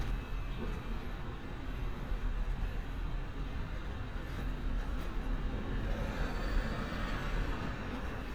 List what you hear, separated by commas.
large-sounding engine